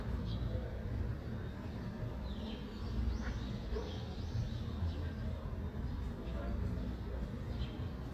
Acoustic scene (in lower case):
residential area